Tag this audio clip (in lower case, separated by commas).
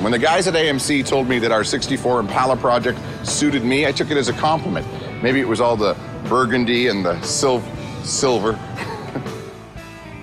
speech, music